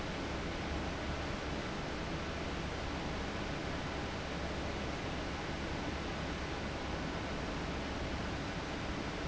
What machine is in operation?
fan